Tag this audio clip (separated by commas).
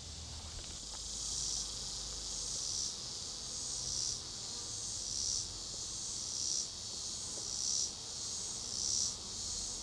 Insect, bee or wasp, Cricket, housefly